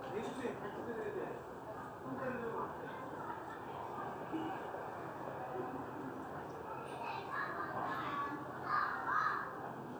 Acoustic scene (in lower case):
residential area